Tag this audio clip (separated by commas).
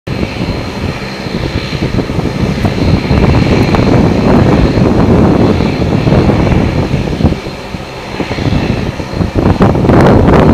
Vehicle, airplane, Aircraft